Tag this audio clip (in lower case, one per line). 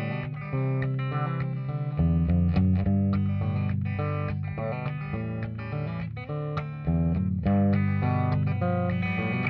music